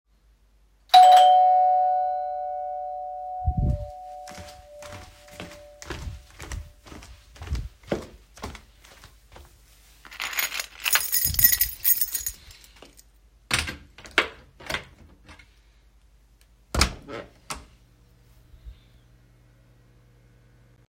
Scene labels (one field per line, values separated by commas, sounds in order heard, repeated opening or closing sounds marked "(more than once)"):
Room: hallway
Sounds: bell ringing, footsteps, keys, door (more than once)